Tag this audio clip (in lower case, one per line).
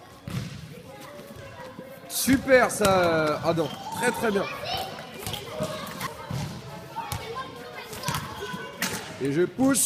playing volleyball